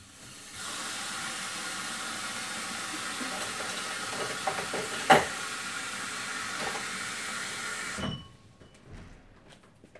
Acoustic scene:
kitchen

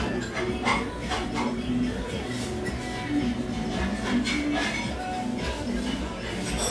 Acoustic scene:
restaurant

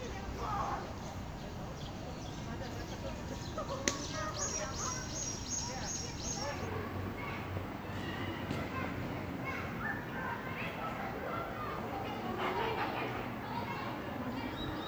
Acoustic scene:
park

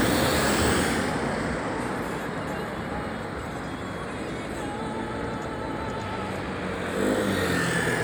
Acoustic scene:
street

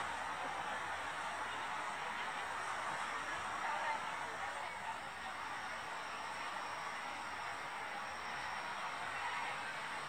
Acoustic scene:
street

